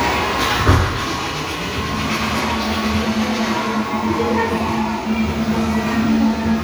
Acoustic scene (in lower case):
crowded indoor space